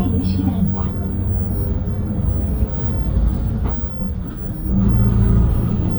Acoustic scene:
bus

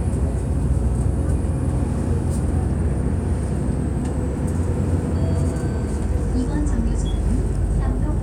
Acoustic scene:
bus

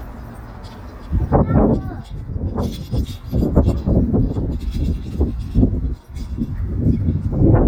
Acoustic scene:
residential area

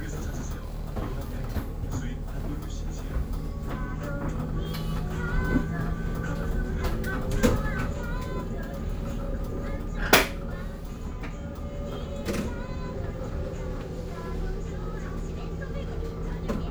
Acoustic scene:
bus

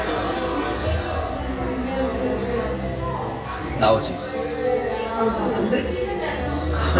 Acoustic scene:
cafe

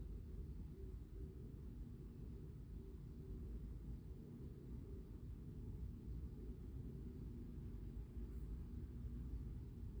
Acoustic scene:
residential area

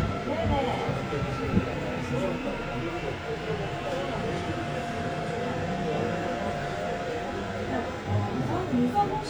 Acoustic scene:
subway train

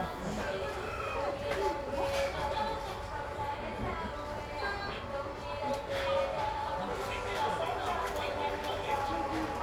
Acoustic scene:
crowded indoor space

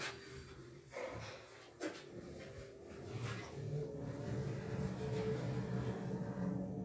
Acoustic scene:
elevator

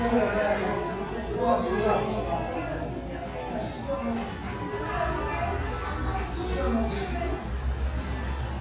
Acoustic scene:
crowded indoor space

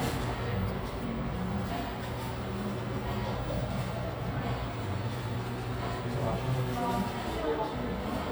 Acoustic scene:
cafe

